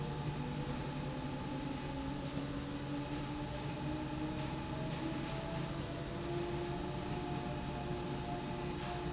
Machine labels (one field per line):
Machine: slide rail